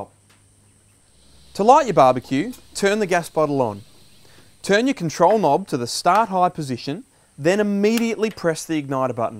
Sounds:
Speech

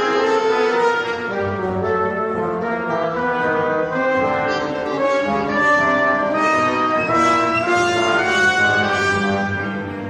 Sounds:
Brass instrument, Clarinet

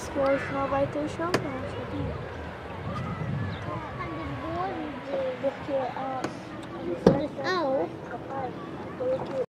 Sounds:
Speech, Vehicle, Water vehicle

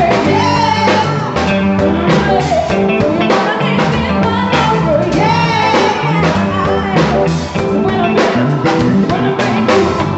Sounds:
Exciting music, Music

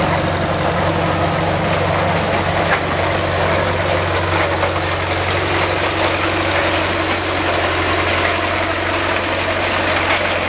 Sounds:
Vehicle

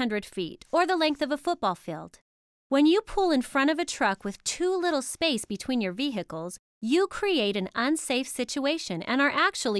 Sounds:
Speech

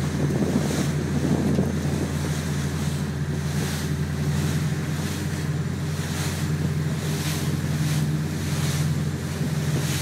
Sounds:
Gurgling

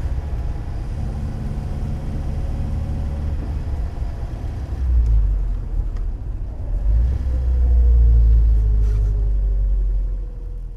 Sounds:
Vehicle, Car

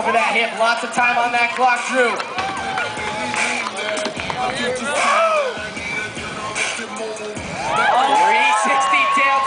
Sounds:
Music, Speech

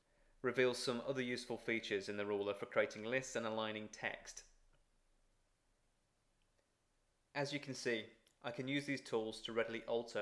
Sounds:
Speech

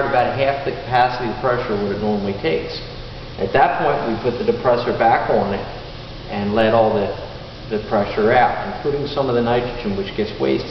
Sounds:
Speech

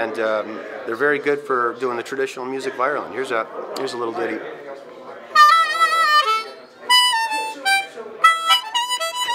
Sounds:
Harmonica, Speech

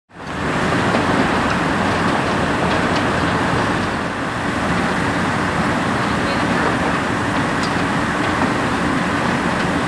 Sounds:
Speech, roadway noise

